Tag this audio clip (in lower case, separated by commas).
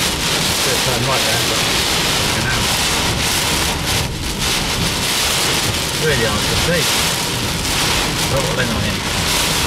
raining, raindrop, speech